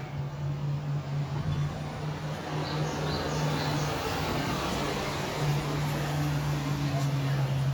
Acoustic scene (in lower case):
residential area